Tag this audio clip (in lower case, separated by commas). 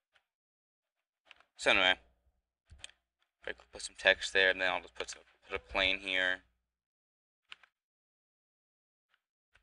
speech